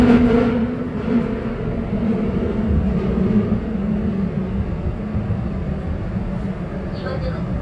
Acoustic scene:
subway train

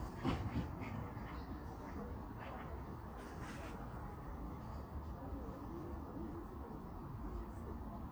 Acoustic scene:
park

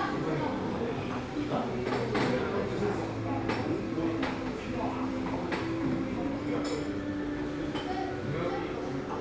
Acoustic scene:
crowded indoor space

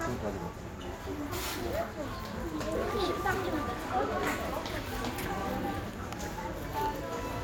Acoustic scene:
crowded indoor space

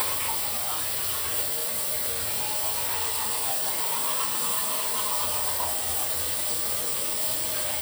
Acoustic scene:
restroom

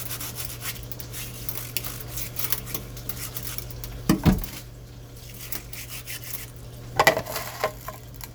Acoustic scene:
kitchen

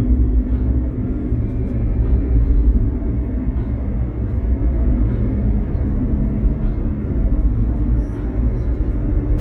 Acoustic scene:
car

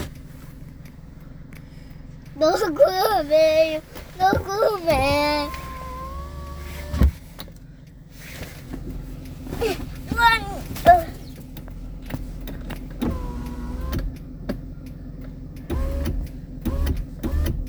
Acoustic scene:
car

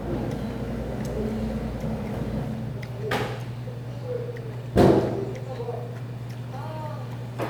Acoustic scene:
restaurant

